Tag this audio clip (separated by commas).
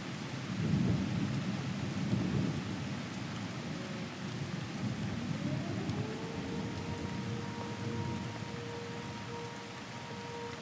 Siren